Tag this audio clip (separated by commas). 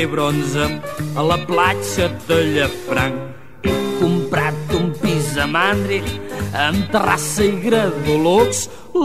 Jingle bell, Music